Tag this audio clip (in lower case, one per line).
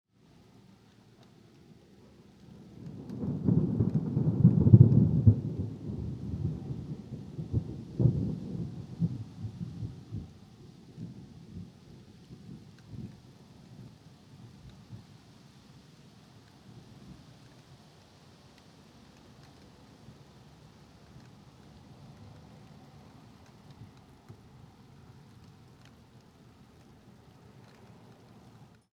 water
thunder
thunderstorm
rain